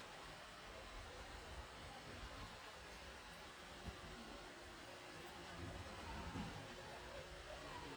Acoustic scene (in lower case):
park